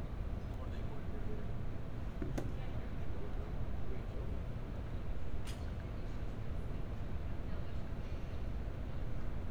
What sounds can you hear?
unidentified human voice